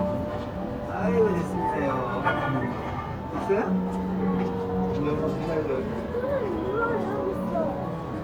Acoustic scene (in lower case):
crowded indoor space